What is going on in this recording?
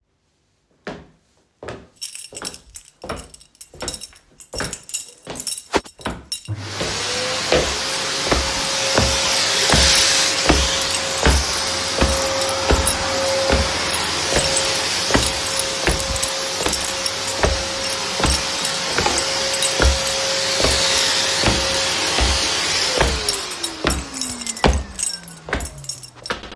I was walking with my keys in the pocket, then I turned on the vacuum cleaner, walked with it a couple seconds, turned off and walked a couple more steps.